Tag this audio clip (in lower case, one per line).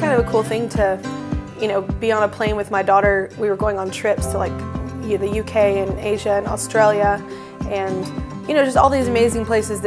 speech
music